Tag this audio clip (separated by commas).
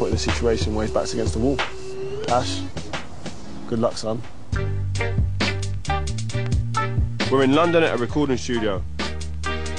Speech, Music